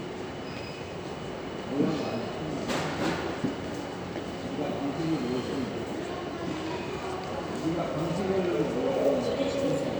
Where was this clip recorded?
in a subway station